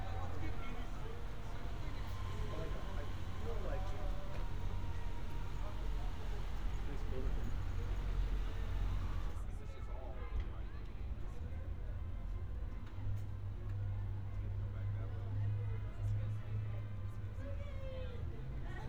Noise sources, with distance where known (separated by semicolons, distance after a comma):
person or small group talking